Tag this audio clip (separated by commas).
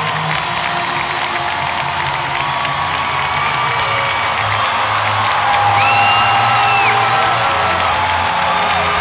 Music, Crowd